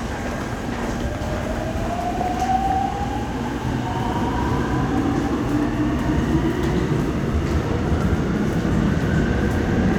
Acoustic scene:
subway station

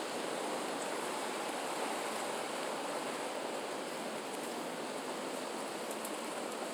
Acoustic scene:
residential area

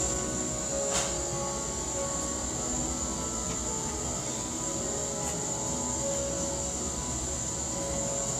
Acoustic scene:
cafe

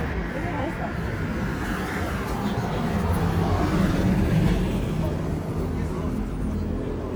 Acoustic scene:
street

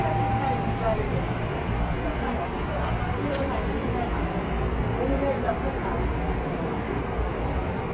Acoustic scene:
subway train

